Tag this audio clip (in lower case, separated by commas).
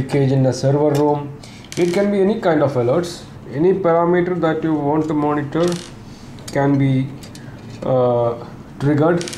speech